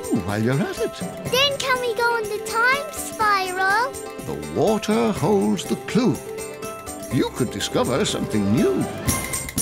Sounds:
Music

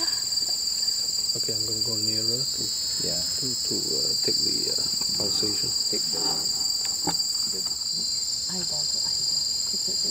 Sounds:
outside, rural or natural, Speech, Insect

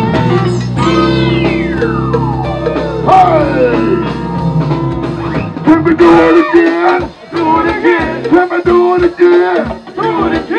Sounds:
Funk, Music

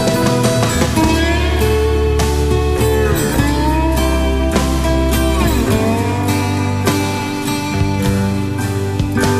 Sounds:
Music

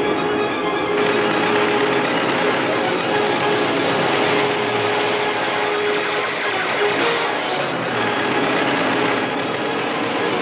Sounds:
Music

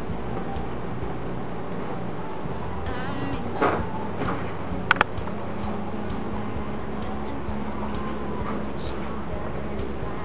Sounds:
Music

